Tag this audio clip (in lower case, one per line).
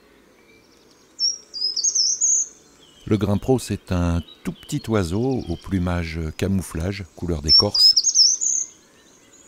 mynah bird singing